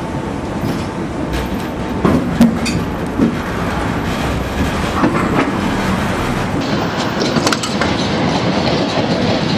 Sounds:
outside, urban or man-made, Vehicle, Railroad car

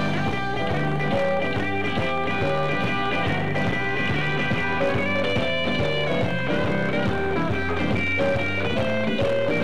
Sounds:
Music

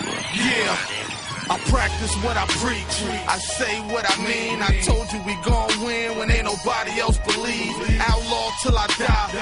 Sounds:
Dance music, Music

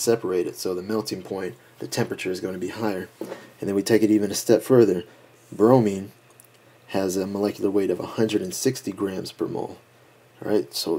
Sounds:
Speech

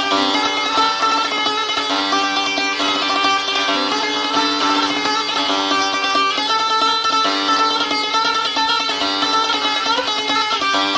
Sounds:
Music

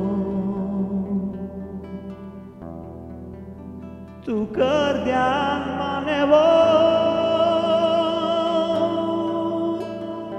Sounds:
Male singing, Music

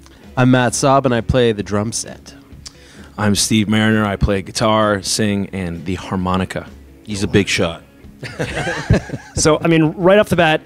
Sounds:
Music, Speech

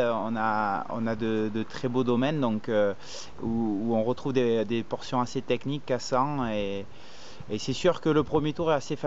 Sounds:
Speech

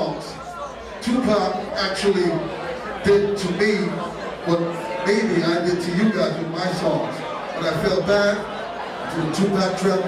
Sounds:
Speech

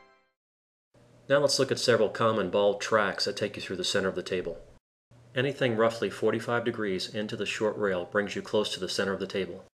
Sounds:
striking pool

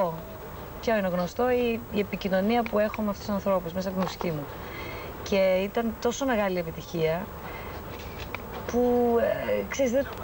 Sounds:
Speech

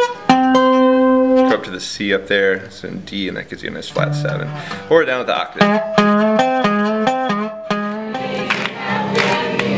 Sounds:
Bluegrass, Music, Speech

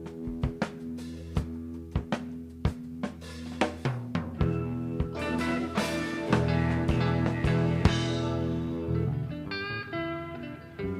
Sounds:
Snare drum, Rimshot, Music

